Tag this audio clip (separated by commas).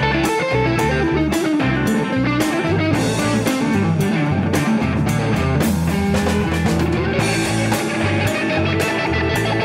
Plucked string instrument, Rock music, Music, Musical instrument, playing electric guitar, Electric guitar, Guitar